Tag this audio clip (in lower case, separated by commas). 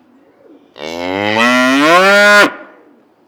livestock, animal